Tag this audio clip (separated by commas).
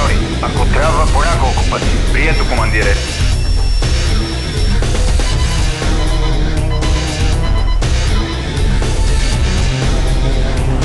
Music, Speech